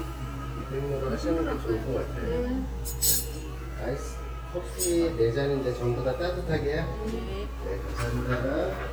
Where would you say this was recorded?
in a restaurant